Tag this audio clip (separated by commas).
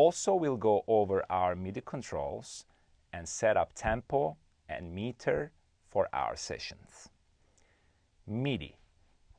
Speech